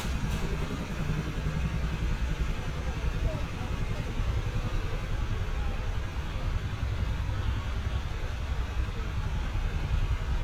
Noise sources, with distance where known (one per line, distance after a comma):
unidentified human voice, far